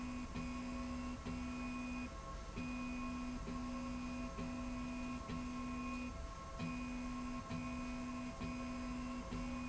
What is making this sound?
slide rail